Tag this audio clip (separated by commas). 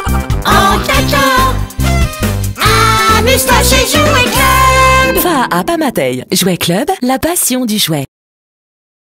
Music, Speech